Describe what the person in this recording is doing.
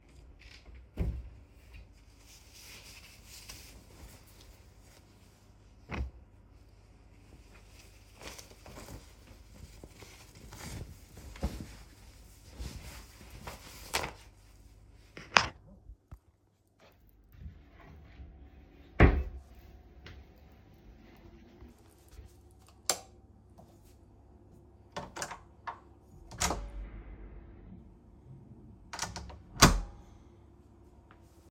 I opened a wardrobe, took clothes, put them on, closed a wardrobe, turned off light, opened door